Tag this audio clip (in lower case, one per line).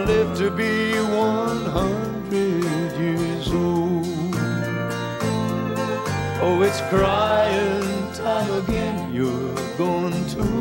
music